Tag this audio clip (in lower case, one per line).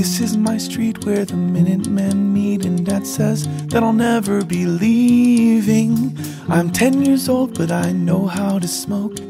independent music
music